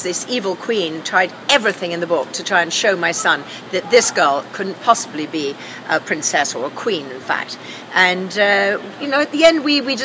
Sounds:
speech

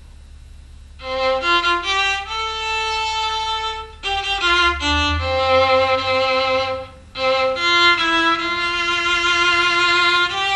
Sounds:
music
violin
musical instrument

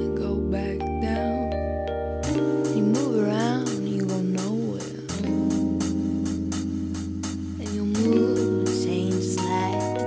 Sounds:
music
vibraphone

